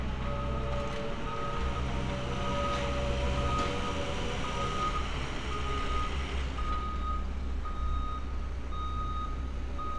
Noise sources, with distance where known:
engine of unclear size, near; unidentified alert signal, near

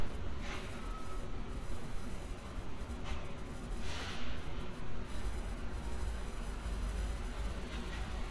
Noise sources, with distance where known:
non-machinery impact

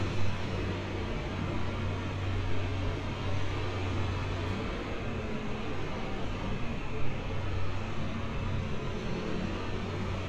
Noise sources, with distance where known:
unidentified impact machinery, near

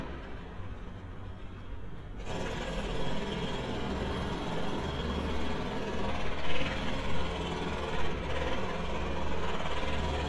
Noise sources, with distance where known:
jackhammer, near

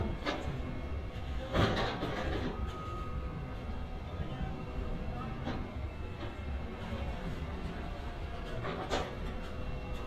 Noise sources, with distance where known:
reverse beeper, far

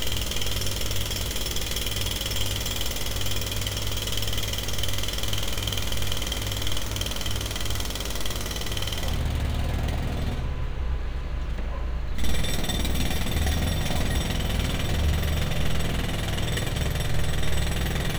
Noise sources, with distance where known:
jackhammer, near

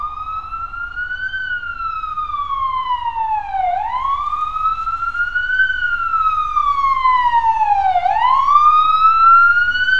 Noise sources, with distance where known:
siren, near

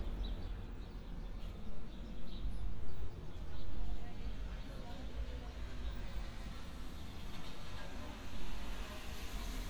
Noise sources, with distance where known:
background noise

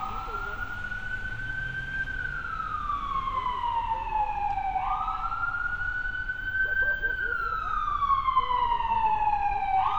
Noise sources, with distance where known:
siren, near

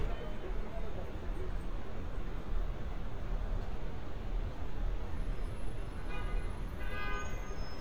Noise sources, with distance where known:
car horn, near

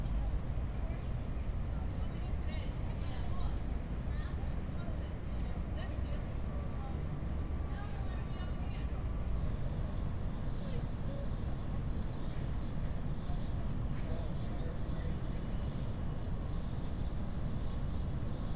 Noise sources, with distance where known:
person or small group talking

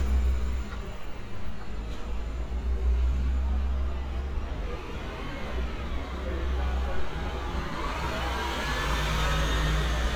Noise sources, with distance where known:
engine of unclear size, near

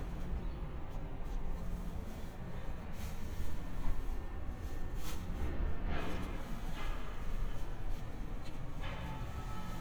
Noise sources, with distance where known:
background noise

